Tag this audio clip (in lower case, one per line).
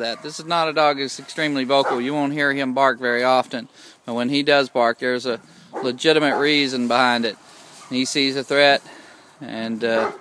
bow-wow
speech